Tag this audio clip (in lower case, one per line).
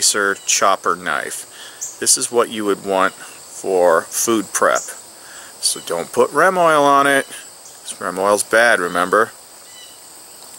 outside, rural or natural
speech